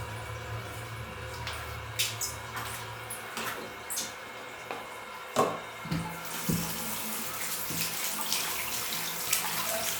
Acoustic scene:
restroom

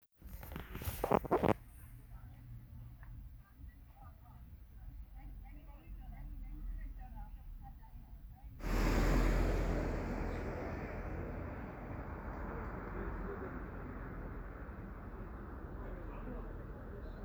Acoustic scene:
residential area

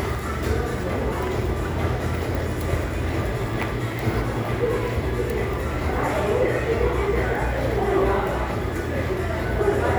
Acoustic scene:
crowded indoor space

